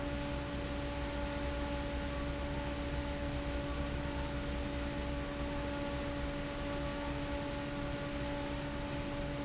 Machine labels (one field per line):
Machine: fan